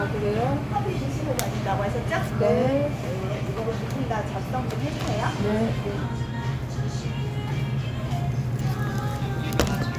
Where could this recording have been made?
in a cafe